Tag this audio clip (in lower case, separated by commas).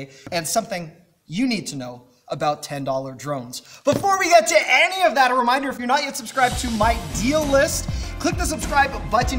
speech, music